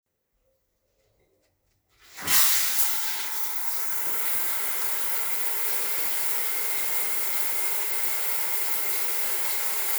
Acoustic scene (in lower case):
restroom